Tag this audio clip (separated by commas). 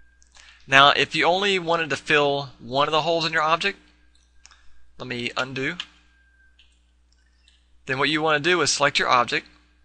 Speech